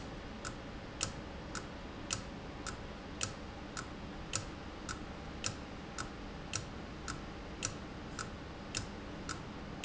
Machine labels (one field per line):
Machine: valve